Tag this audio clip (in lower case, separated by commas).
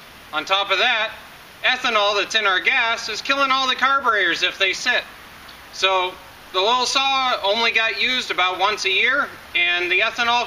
speech